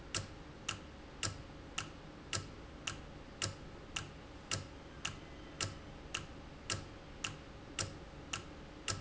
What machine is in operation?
valve